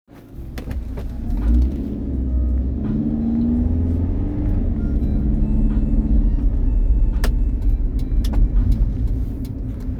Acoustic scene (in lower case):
car